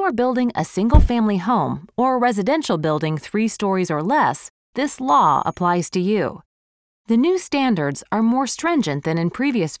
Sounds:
Speech

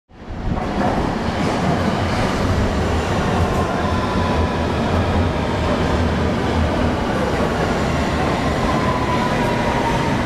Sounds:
underground

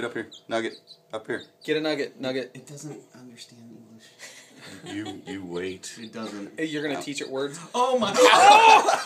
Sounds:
rooster, Speech

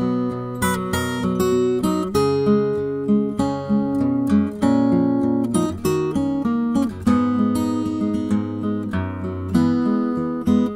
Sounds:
Strum, Musical instrument, Plucked string instrument, Music, Guitar, Acoustic guitar

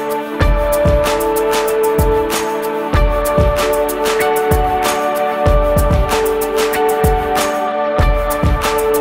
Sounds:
Music

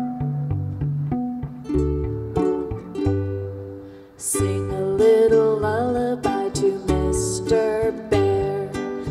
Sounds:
Lullaby, Music

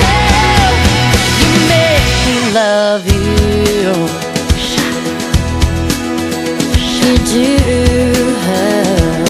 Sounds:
Music

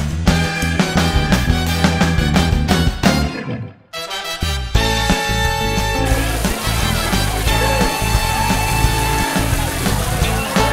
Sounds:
Music, Water

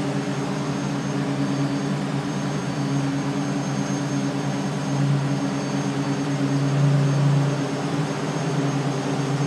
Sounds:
Heavy engine (low frequency), Engine, Vehicle

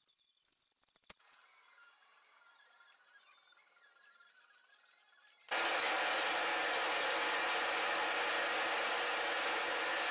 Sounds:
kayak rowing

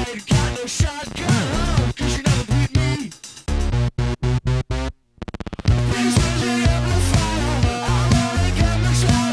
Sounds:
Music

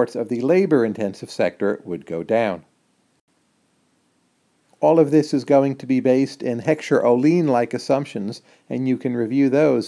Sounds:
Speech, inside a small room

